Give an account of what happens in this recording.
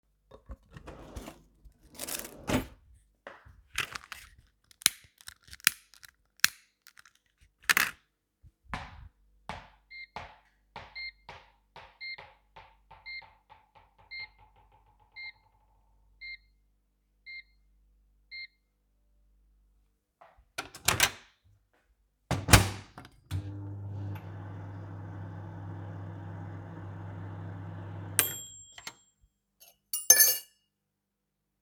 opened the drawer, lit the lighter, dropped a bouncy ball and then heard the bell ringing, that's when i started hearing up my snack and ended with dopping a spoon in my cup.